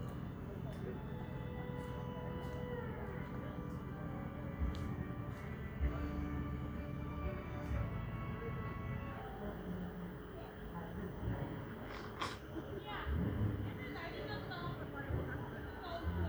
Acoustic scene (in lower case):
park